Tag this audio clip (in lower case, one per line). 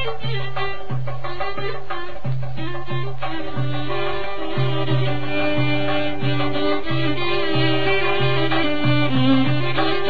music
traditional music